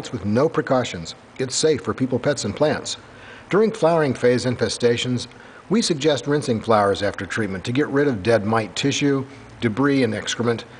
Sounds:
speech

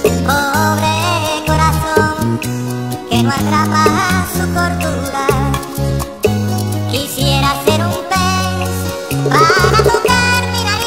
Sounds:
music

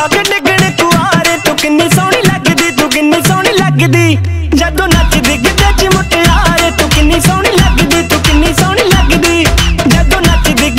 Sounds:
music

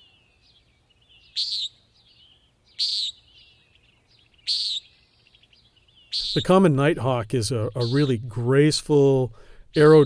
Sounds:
bird squawking

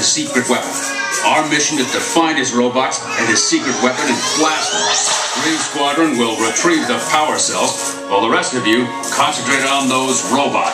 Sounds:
speech
music

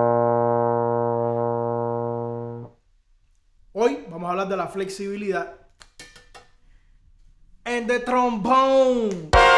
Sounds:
playing trombone

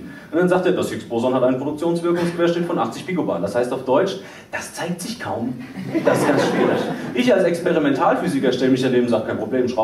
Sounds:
speech

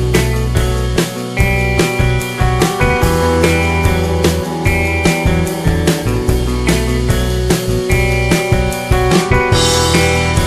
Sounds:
music

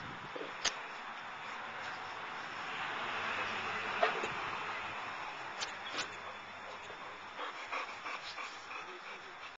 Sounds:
dog
pets
animal

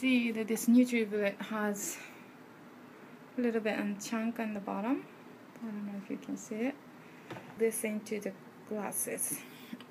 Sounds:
speech

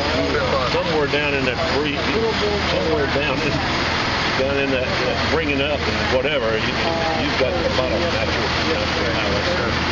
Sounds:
speech

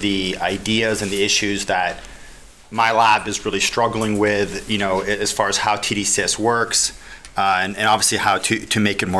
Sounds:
speech

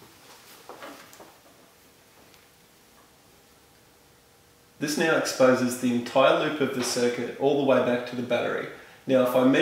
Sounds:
speech

